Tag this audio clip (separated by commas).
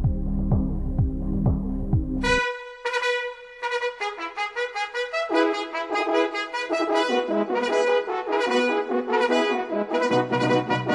Music